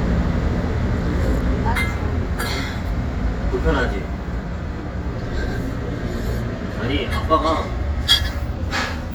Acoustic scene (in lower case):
restaurant